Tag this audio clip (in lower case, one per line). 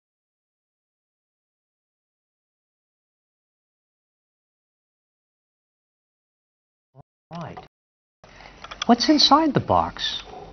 inside a small room
speech
silence